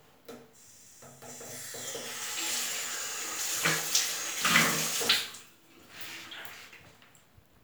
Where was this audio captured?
in a restroom